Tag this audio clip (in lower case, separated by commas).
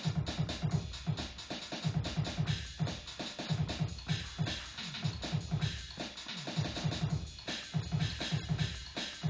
music, drum machine